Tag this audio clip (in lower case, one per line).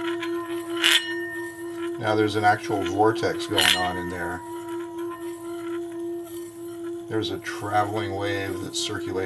singing bowl